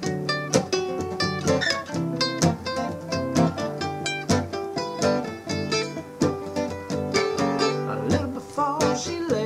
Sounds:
music

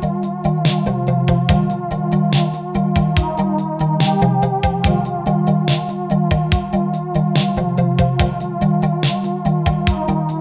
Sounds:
house music, music

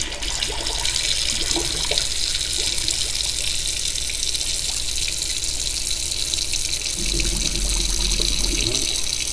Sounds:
liquid, sink (filling or washing), water

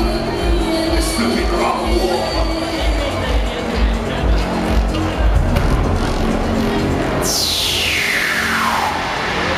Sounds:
blues, background music, exciting music, speech, music

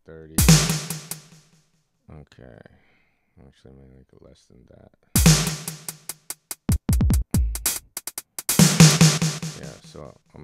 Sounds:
drum machine, music, dubstep, speech, electronic music

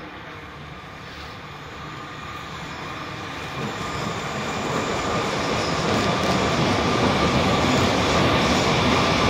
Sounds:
train, rail transport, vehicle

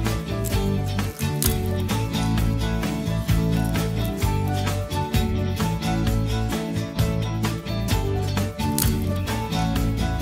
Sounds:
music

